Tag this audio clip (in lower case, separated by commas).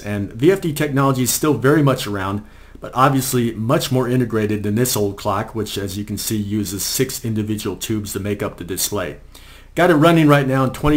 speech